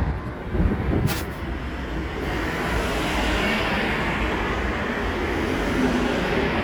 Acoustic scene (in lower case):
street